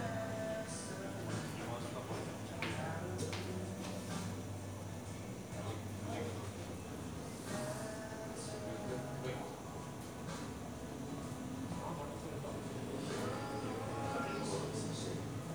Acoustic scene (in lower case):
cafe